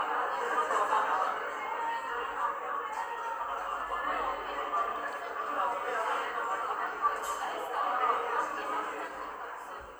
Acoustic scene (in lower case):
cafe